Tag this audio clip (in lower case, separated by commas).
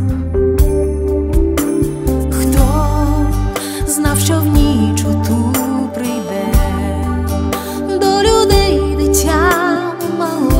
music, christmas music